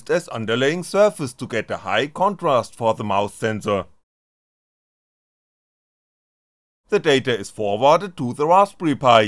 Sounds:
speech

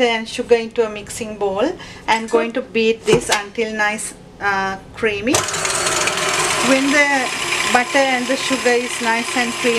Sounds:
inside a small room, speech

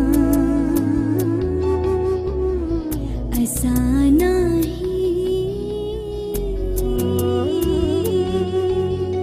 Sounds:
singing, music, middle eastern music

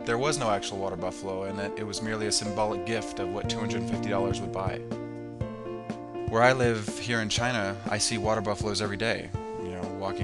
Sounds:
speech, music

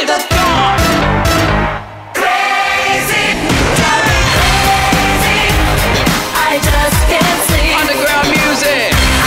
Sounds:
music

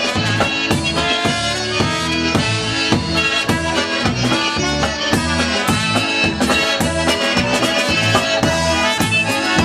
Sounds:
musical instrument, accordion, music

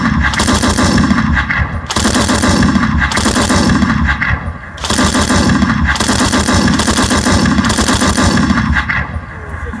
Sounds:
speech

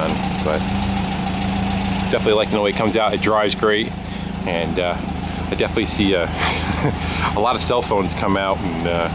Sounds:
vehicle, truck

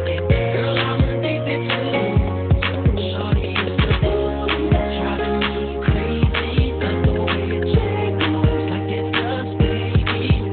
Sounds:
music

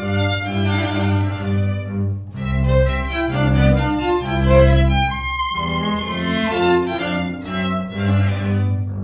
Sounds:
cello, playing cello, fiddle, music, musical instrument

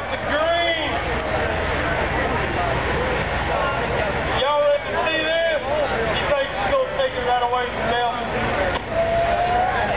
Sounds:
speech

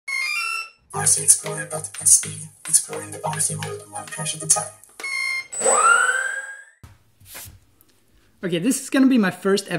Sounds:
speech, inside a small room

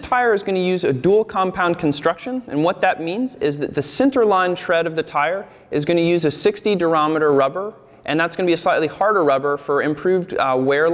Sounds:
speech

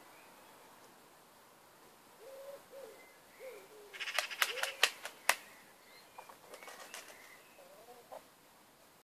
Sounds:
animal, cluck

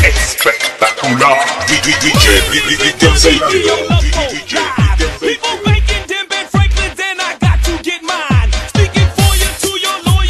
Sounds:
electronic music, techno, music

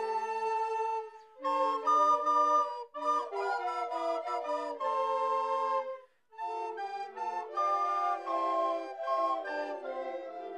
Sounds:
music, flute

